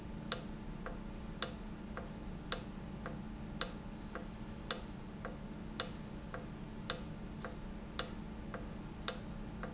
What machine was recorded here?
valve